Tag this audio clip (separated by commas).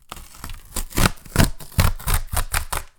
Tearing